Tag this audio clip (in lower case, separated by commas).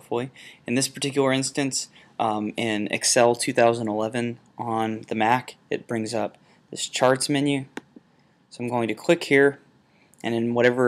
speech